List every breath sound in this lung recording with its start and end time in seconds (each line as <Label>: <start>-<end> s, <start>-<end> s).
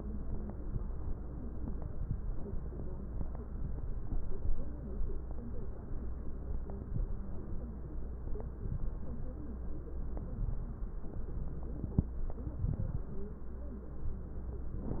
Inhalation: 12.43-13.09 s
Crackles: 12.43-13.09 s